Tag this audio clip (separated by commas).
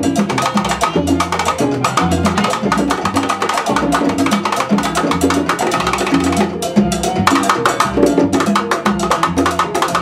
Musical instrument, Drum, Music, Percussion, Wood block